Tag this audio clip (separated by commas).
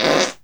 Fart